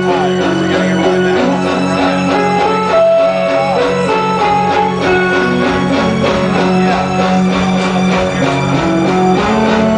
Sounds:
Music

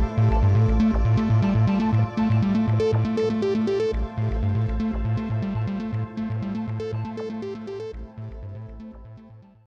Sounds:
Music

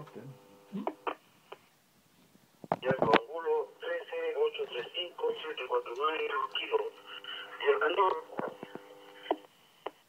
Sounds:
police radio chatter

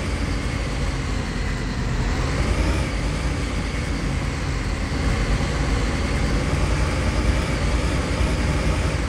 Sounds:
Motor vehicle (road), driving buses, Bus

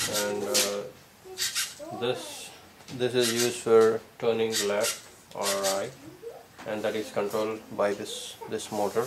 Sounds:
Speech

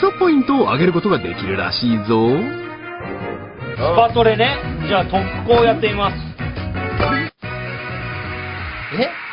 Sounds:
Speech, Music

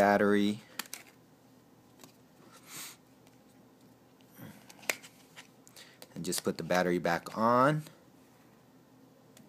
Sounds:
inside a small room, Speech

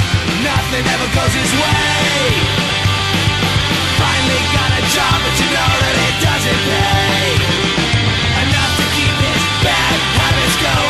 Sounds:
Music

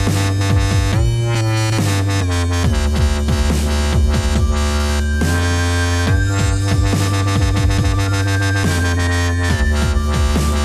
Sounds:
Dubstep

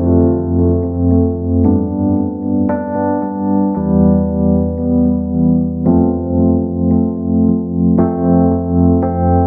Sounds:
Music

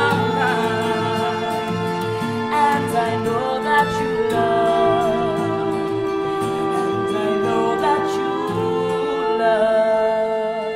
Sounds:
Music, inside a large room or hall, Singing

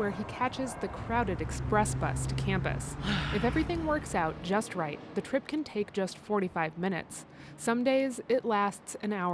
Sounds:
Vehicle, Speech

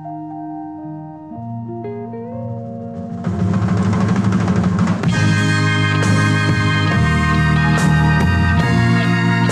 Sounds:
Music

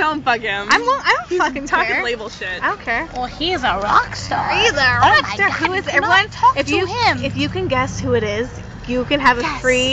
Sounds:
Speech

